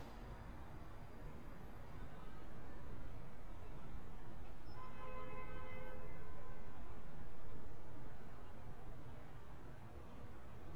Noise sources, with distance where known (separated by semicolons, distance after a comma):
car horn, far